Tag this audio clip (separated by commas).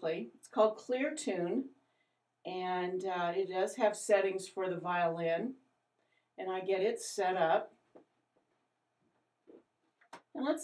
Speech